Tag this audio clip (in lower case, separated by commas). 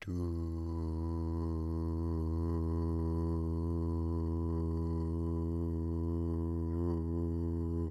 singing, human voice